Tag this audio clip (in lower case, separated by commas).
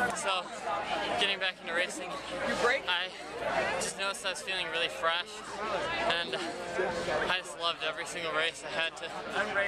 speech, outside, rural or natural